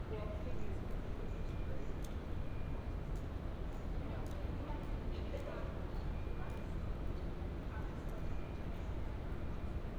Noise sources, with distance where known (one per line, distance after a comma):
unidentified alert signal, far
person or small group talking, far